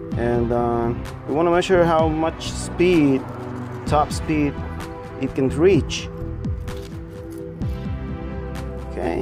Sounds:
Speech, Music

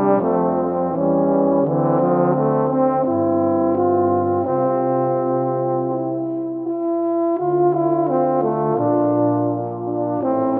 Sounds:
Music

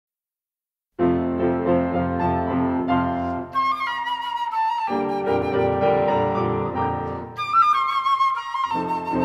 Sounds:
Music, Flute, Classical music, woodwind instrument, Musical instrument

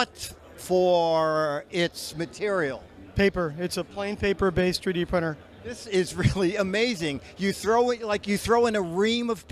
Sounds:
Speech

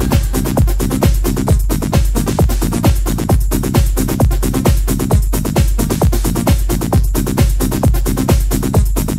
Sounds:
Sound effect, Music

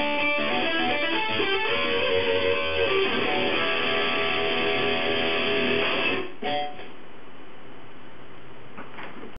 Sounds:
Guitar, Strum, Musical instrument, Electric guitar, Music, Plucked string instrument

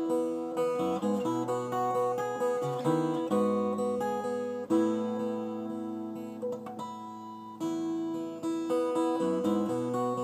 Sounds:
Musical instrument, Music, Guitar, playing acoustic guitar, Plucked string instrument, Acoustic guitar

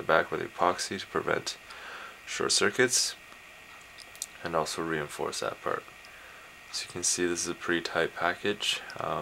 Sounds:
Speech

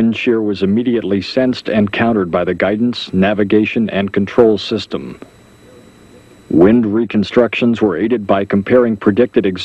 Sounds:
Speech

